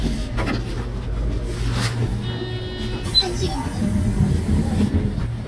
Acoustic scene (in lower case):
bus